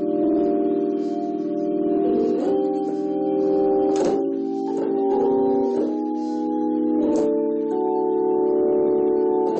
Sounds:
keyboard (musical)
electric piano
electronic organ
music
piano
musical instrument

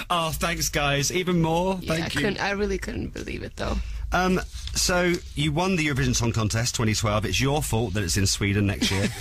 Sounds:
speech

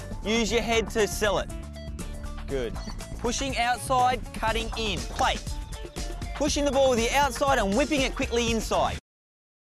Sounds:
music
speech

